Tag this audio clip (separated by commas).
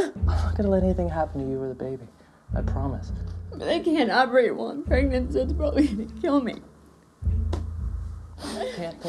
Speech, inside a small room